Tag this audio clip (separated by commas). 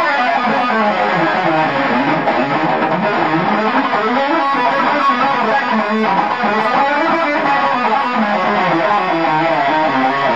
Music